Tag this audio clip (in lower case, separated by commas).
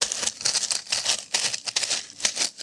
walk